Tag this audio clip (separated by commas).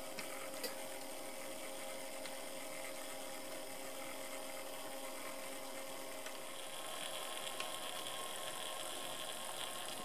Hum, Mains hum